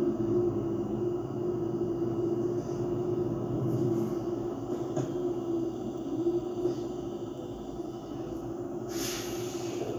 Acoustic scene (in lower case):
bus